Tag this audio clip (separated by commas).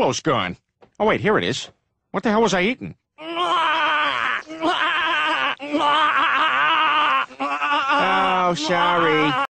Speech